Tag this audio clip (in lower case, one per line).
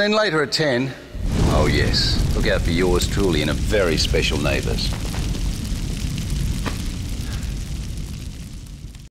eruption
speech